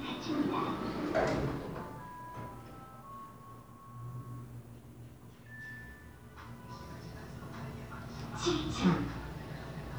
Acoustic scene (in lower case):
elevator